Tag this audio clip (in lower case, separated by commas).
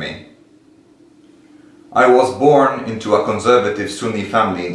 speech